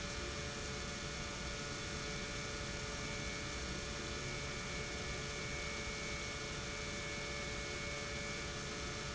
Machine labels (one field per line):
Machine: pump